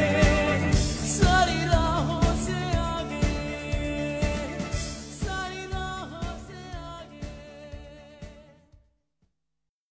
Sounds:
Singing

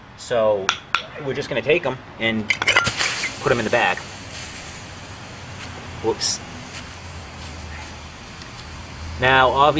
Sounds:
Speech, Boiling

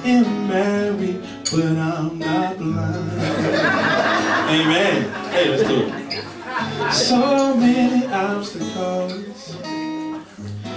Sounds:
Musical instrument, Music, Guitar, Speech, Plucked string instrument, Strum

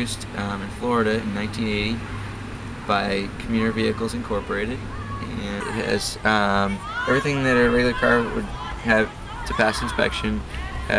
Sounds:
Speech

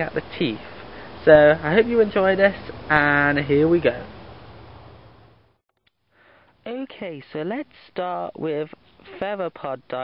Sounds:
Speech

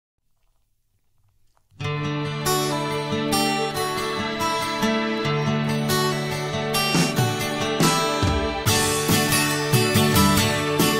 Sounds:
Music

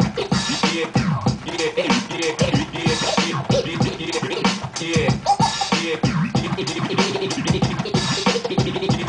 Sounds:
Music, Scratching (performance technique), Electronic music, Hip hop music

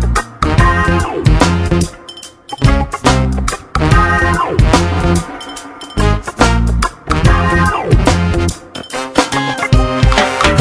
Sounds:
Music

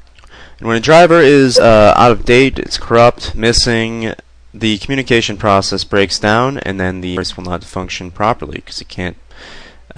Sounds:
Speech

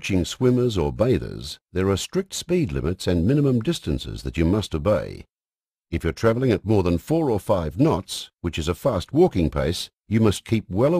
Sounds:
Speech

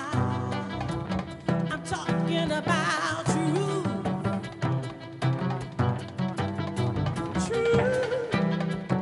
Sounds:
Musical instrument, Music, Drum, Bowed string instrument, Singing, Double bass, fiddle, Jazz, Cello

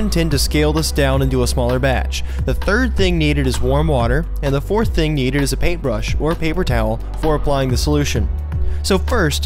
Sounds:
Music, Speech

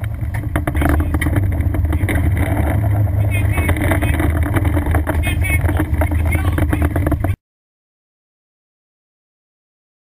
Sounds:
Water vehicle, Vehicle, Speech, Motorboat, Sailboat

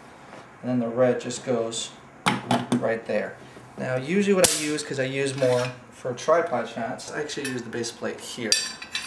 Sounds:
Speech

